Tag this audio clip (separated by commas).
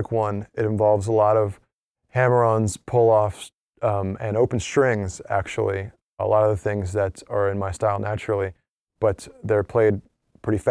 Speech